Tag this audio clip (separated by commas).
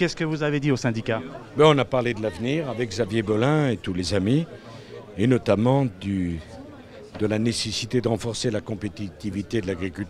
Speech